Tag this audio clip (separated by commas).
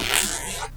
Domestic sounds, Zipper (clothing)